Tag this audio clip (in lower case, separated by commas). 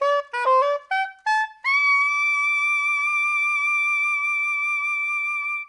music, musical instrument, wind instrument